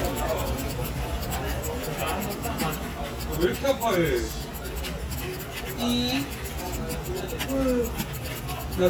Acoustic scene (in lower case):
crowded indoor space